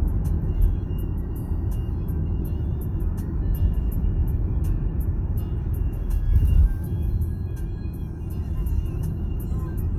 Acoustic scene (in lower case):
car